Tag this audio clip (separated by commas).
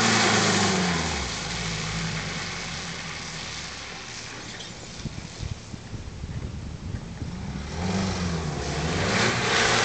Vehicle, Car